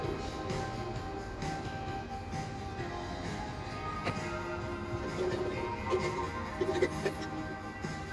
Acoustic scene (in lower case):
cafe